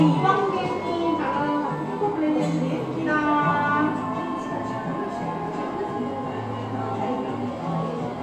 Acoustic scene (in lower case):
cafe